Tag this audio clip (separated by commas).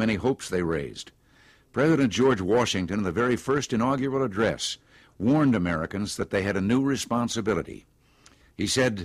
Speech